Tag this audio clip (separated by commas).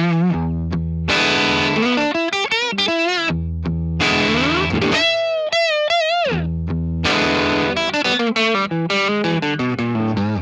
Music